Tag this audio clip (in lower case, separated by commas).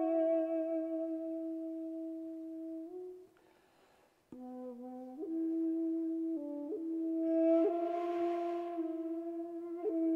musical instrument, music